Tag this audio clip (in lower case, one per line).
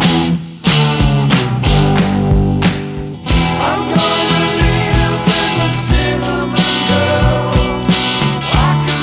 music
musical instrument
independent music